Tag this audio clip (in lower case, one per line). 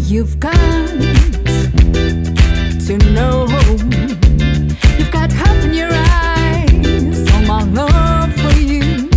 music
soundtrack music